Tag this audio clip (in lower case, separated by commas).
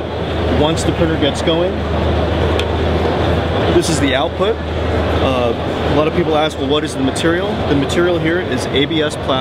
speech